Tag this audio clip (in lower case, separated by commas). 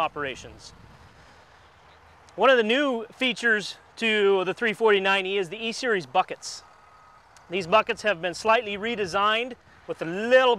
speech